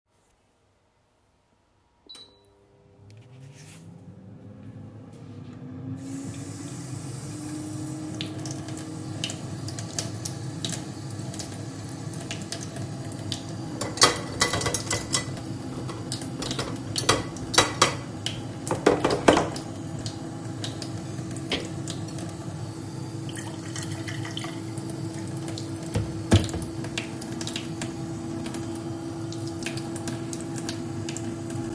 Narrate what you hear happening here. I started the microwave and while waiting for it to finish, I started cleaning the dishes. I was searching for space in the drying rack and saw one of my glasses had limescale on it, so I cleaned the glass. After finished cleaning it, I put it back on the drying rack.